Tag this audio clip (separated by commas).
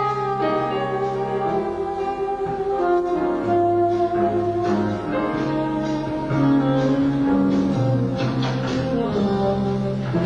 Saxophone, Brass instrument